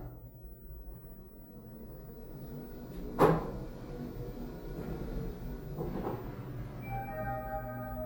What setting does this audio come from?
elevator